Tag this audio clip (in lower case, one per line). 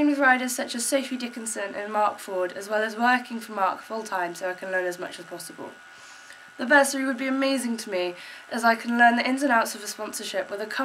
speech